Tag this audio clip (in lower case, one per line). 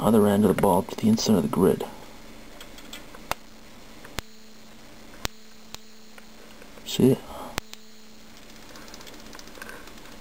speech